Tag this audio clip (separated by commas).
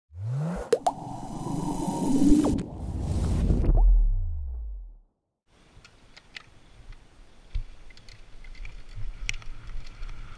Vehicle, Music, Bicycle